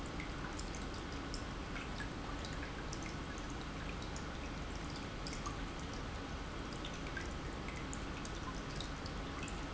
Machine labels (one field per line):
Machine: pump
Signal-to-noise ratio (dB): 0 dB